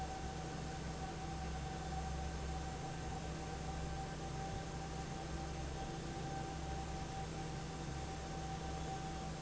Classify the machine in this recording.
fan